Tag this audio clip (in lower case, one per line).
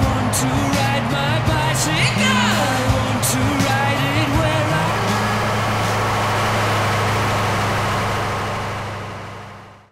music
vehicle